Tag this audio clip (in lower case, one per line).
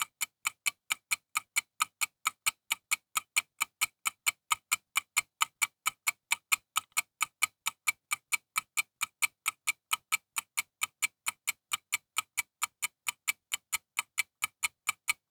tick-tock
mechanisms
clock